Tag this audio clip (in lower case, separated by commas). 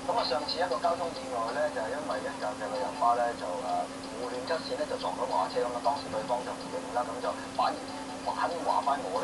speech